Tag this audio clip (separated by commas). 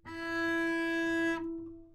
Musical instrument, Bowed string instrument, Music